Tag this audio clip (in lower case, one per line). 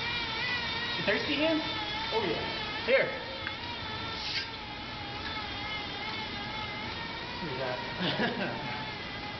speech
inside a large room or hall